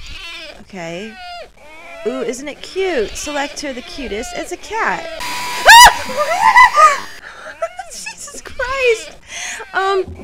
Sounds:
Speech

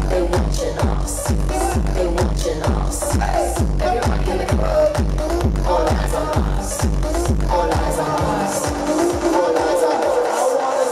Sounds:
Music

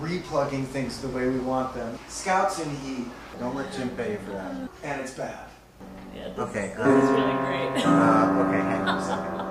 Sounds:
Echo, Speech, Music

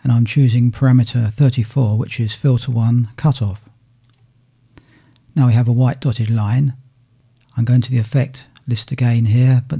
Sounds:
Speech

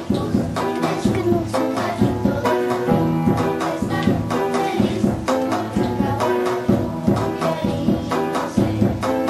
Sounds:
Singing, Choir, Music

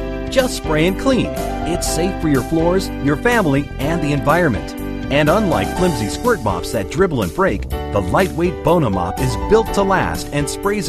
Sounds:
Speech, Music

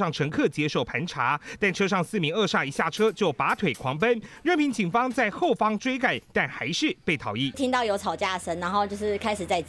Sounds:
police radio chatter

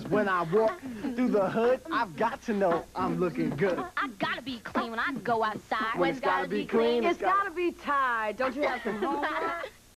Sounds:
Speech

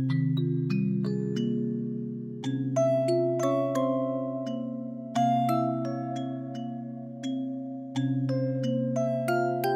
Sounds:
Music

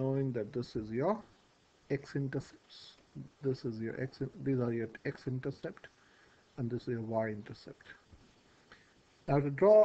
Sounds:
Speech

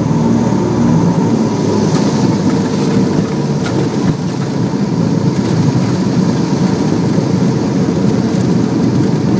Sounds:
Vehicle

